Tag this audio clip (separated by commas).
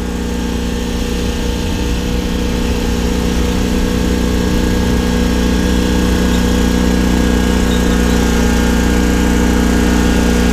lawn mowing, Lawn mower